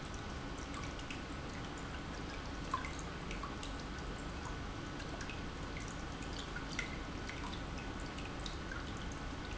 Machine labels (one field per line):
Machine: pump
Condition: normal